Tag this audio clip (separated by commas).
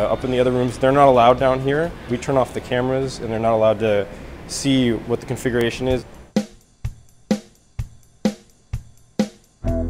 Speech, Music